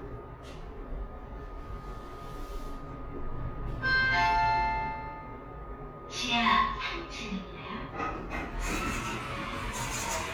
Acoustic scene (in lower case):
elevator